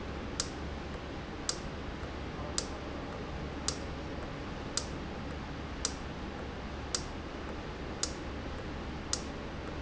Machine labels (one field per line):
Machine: valve